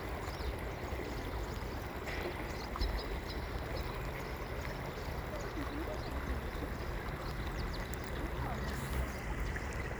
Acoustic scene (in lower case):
park